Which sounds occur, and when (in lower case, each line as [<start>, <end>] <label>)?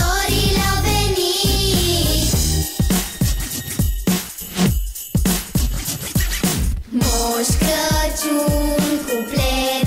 [0.00, 2.30] child singing
[0.00, 9.85] music
[6.85, 9.85] child singing